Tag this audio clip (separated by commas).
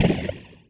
Gunshot, Explosion